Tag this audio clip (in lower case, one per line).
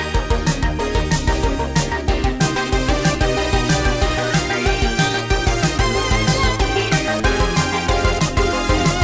video game music
music